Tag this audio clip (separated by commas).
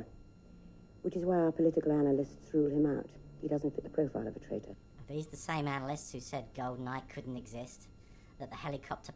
Speech, Conversation